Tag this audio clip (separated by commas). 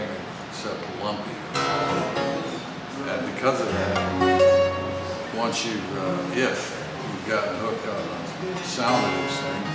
Musical instrument, Plucked string instrument, Speech, Strum, Music, Guitar